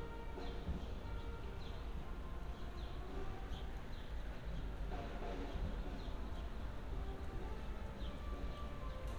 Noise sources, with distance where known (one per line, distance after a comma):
music from a fixed source, far